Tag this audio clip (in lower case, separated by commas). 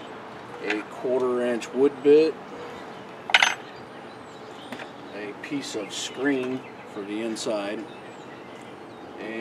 speech